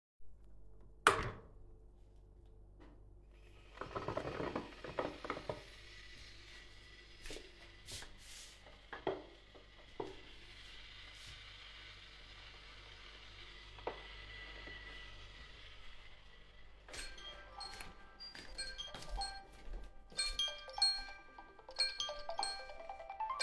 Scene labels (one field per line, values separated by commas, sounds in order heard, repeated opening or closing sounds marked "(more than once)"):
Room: kitchen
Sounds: phone ringing